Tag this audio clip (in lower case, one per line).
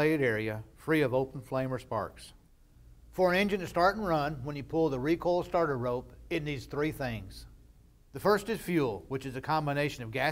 speech